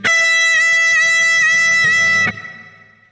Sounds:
music, electric guitar, guitar, plucked string instrument, musical instrument

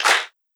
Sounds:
hands, clapping

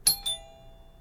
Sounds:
alarm, door, doorbell, home sounds

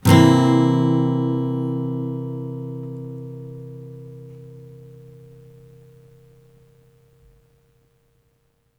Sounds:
music, musical instrument, plucked string instrument, guitar, acoustic guitar

